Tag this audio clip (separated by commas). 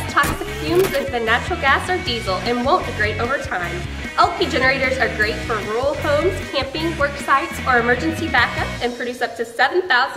Music, Speech